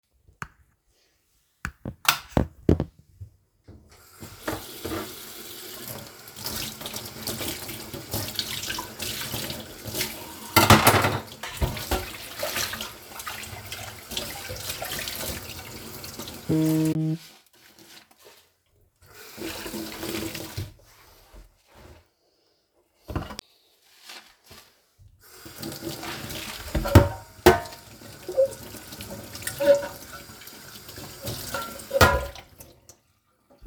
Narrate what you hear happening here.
I turned on the light in the kitchen and turned on the tap in the sink. While I was washing the dishes, the phone rang.